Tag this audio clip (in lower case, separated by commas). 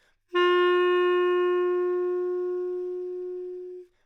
musical instrument, music, wind instrument